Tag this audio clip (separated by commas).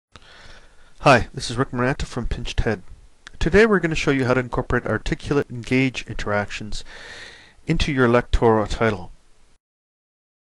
Speech